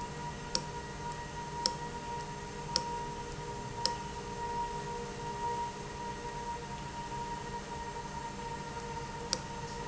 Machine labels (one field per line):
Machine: valve